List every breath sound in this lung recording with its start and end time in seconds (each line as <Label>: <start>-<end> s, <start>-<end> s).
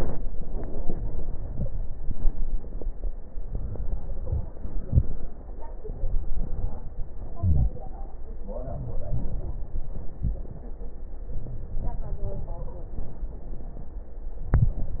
Inhalation: 0.22-1.89 s, 3.22-5.43 s, 7.14-8.34 s, 11.30-12.82 s
Exhalation: 1.95-3.19 s, 5.35-7.12 s, 8.35-10.71 s, 12.80-14.38 s
Stridor: 1.50-1.75 s, 12.48-12.97 s
Crackles: 1.91-3.20 s, 3.22-5.43 s, 5.44-7.13 s, 7.14-8.34 s, 8.35-10.71 s